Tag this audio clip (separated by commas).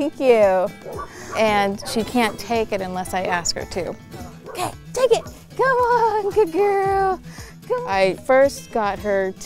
Dog, Speech, Bow-wow, pets, Music